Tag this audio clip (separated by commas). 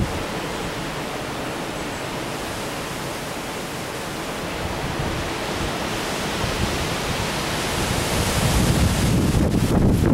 outside, rural or natural, Pink noise